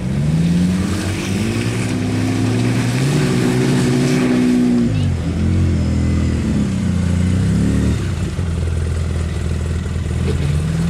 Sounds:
vehicle, accelerating

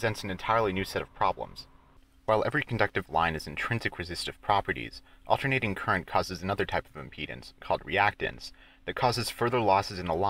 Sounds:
narration, speech synthesizer

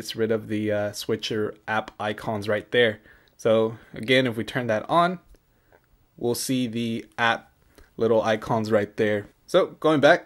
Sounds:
inside a small room, speech

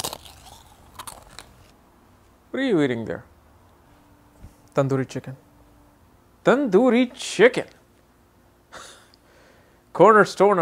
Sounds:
speech

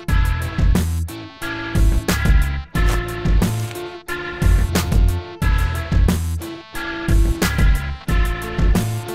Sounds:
music

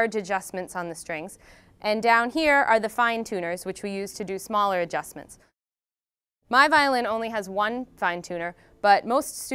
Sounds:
speech

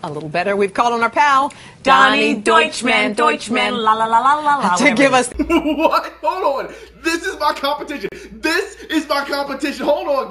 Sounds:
speech

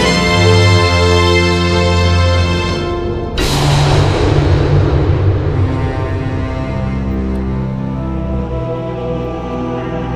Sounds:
music, soundtrack music

